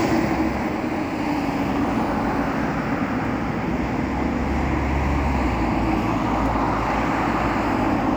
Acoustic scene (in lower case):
street